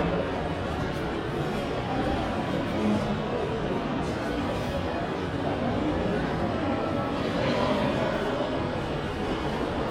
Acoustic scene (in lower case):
crowded indoor space